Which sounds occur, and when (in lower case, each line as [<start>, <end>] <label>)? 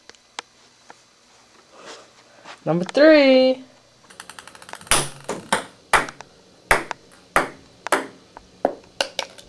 [0.00, 0.15] generic impact sounds
[0.00, 9.45] background noise
[0.31, 0.44] generic impact sounds
[0.81, 0.99] generic impact sounds
[1.61, 2.81] breathing
[1.70, 1.96] generic impact sounds
[2.38, 2.55] generic impact sounds
[2.59, 3.50] male speech
[2.75, 2.94] generic impact sounds
[4.02, 5.51] generic impact sounds
[4.89, 5.03] bouncing
[5.26, 5.61] bouncing
[5.88, 6.11] bouncing
[6.07, 6.26] generic impact sounds
[6.65, 6.89] bouncing
[6.83, 6.97] generic impact sounds
[7.32, 7.50] bouncing
[7.82, 7.86] generic impact sounds
[7.88, 8.06] bouncing
[8.26, 8.41] generic impact sounds
[8.60, 9.30] bouncing
[8.77, 8.85] generic impact sounds